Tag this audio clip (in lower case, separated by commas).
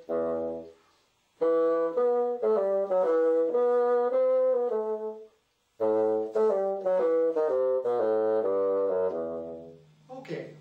playing bassoon